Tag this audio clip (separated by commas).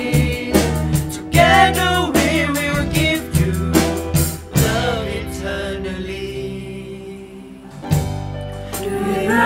Music, Vocal music